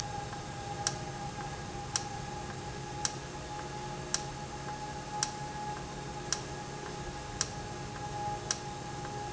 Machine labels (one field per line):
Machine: valve